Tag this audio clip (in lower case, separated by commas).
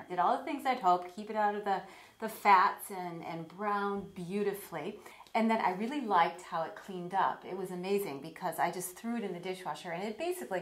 speech